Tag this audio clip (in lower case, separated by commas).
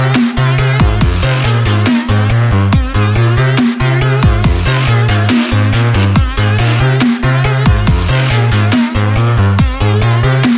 dubstep, music